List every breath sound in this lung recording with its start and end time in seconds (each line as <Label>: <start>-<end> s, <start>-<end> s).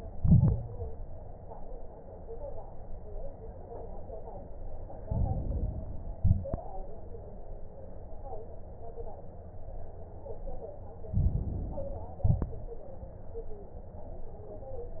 Inhalation: 5.04-6.04 s, 11.14-12.14 s
Exhalation: 0.00-0.93 s, 6.06-6.61 s, 12.22-12.77 s
Crackles: 0.00-0.93 s, 5.04-6.04 s, 6.06-6.61 s, 11.12-12.12 s, 12.22-12.77 s